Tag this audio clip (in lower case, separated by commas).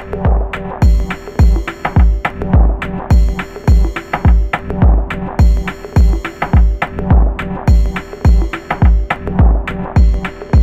synthesizer, music, musical instrument, sampler